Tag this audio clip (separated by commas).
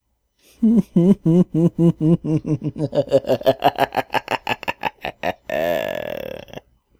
Laughter, Human voice